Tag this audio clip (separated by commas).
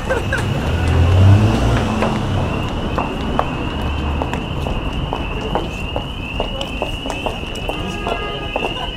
Engine